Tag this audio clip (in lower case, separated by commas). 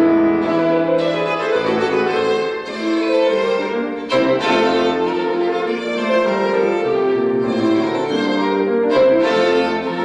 musical instrument, fiddle, violin, music